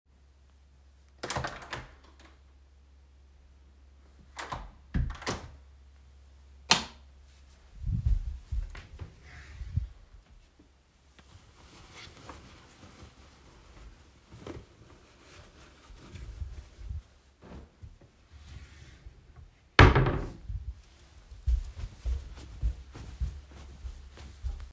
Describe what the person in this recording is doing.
I opened the door, closed it, turned the light on, went up to the drawer, opened it, looked through the clothes. After closing the wardrobe, walked away